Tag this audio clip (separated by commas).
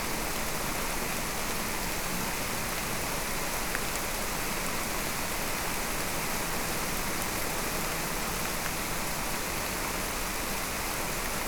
Rain, Water